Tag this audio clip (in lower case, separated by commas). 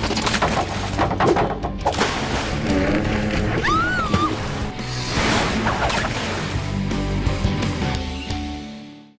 music, water, slosh